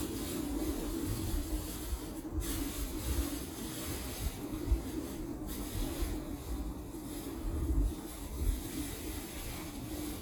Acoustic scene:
residential area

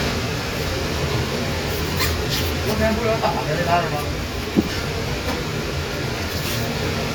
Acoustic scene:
kitchen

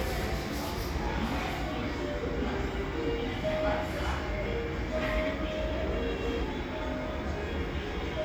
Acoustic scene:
cafe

